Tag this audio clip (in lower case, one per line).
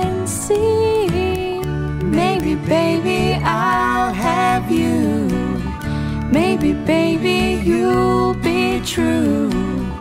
singing
musical instrument
guitar
music